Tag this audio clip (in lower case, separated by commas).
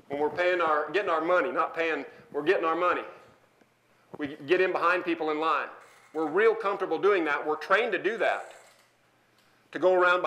speech